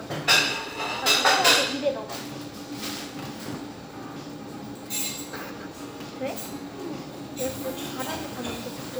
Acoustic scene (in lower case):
restaurant